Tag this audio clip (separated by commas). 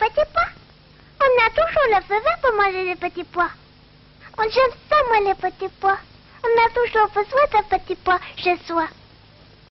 Speech